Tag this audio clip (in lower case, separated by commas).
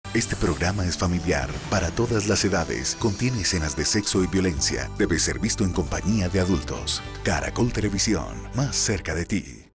television, speech, music